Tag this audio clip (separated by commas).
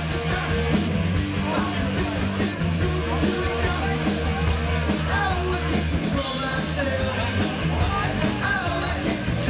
Speech, Music